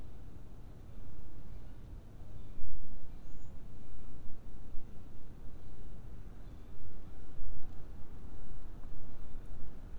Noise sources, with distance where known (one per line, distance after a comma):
background noise